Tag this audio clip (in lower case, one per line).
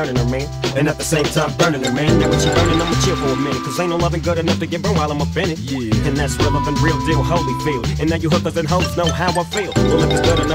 music